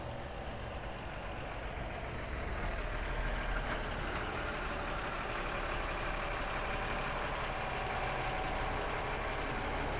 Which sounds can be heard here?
large-sounding engine